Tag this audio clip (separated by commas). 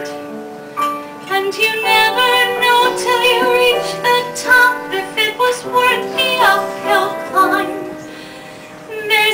Music, Female singing